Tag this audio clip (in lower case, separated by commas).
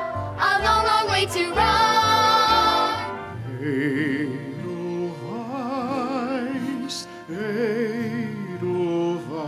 exciting music, music